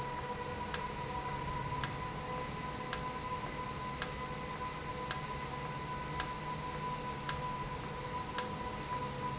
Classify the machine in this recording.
valve